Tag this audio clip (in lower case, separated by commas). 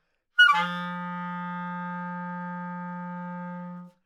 music, wind instrument, musical instrument